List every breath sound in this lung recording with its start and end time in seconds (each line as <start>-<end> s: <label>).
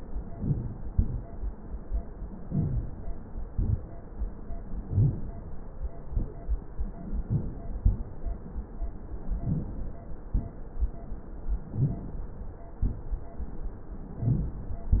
0.32-0.62 s: inhalation
2.45-2.92 s: inhalation
4.79-5.20 s: inhalation
7.22-7.56 s: inhalation
9.39-9.77 s: inhalation
11.74-12.22 s: inhalation
14.29-14.63 s: inhalation